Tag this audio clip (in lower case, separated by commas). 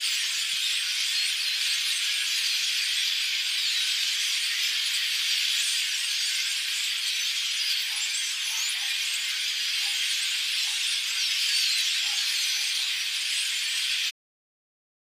wild animals, bird song, chirp, bird, animal